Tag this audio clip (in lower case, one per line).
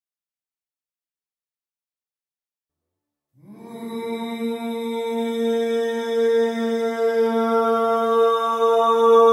music